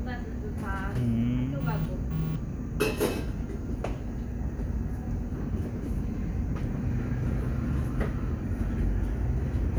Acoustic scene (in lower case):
cafe